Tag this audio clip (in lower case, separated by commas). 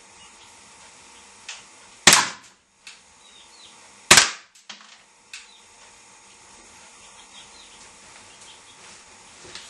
cap gun, gunfire